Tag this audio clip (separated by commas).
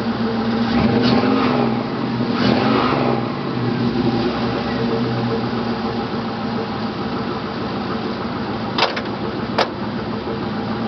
outside, rural or natural, Vehicle, Car